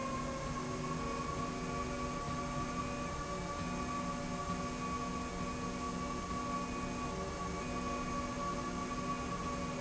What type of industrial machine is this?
slide rail